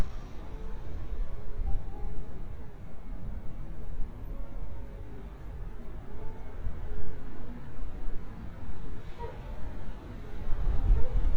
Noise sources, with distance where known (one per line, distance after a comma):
music from an unclear source